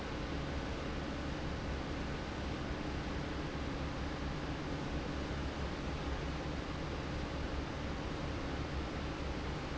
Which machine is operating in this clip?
fan